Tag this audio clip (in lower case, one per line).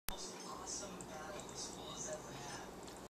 speech